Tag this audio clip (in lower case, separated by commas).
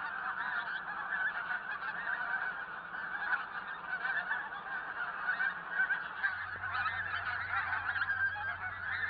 goose, fowl, goose honking, honk